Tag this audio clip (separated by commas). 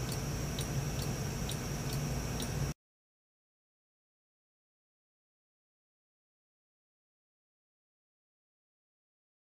Tick-tock